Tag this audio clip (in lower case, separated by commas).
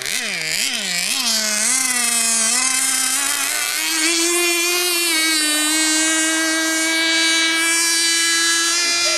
speech